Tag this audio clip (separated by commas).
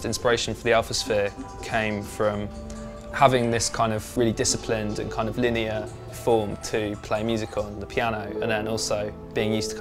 Music, Speech